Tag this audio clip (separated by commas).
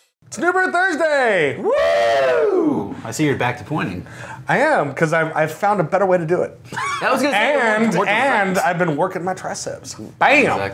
Speech